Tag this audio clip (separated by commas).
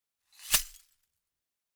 Glass